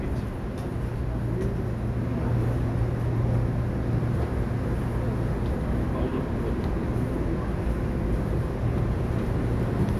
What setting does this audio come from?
subway train